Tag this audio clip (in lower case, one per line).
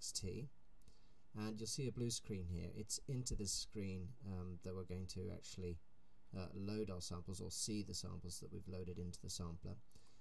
speech